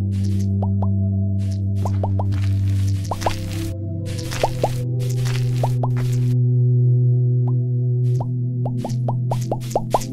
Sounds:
Music

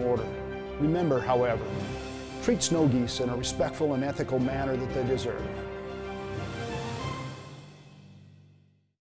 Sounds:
Speech, Music

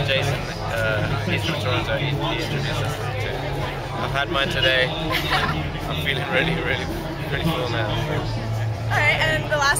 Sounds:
Speech

